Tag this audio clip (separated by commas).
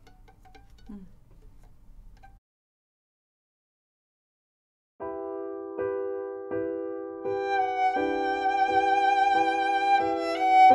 Music, Violin, Musical instrument